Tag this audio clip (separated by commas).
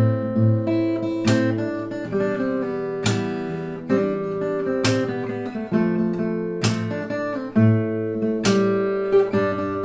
Music, Guitar, Strum, Musical instrument, Plucked string instrument